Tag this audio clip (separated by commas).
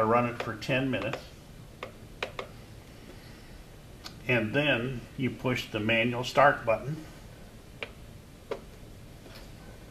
Speech